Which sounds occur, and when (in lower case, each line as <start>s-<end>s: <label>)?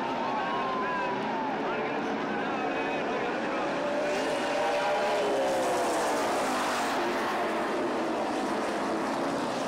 0.0s-9.6s: car
0.0s-3.0s: crowd